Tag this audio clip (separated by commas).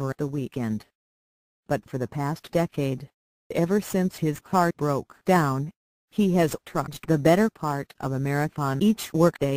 Speech